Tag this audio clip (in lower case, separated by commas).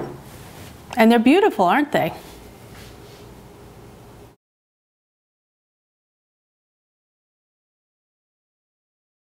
speech